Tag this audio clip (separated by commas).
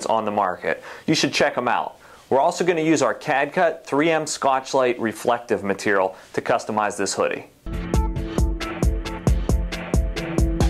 Speech, Music